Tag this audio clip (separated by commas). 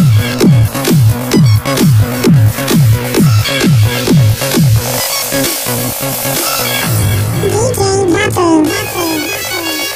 Music